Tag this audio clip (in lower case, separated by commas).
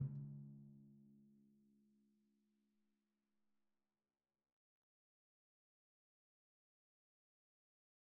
percussion, musical instrument, drum, music